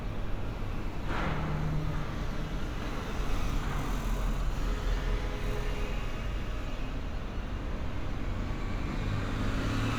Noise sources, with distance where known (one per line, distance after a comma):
engine of unclear size